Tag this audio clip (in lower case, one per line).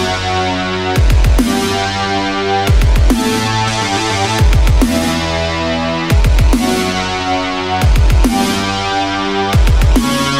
dubstep
music